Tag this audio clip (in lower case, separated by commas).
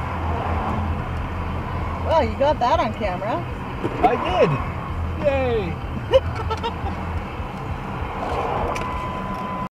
car, vehicle, speech